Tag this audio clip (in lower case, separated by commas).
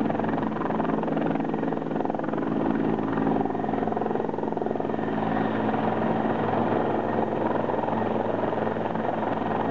helicopter, vehicle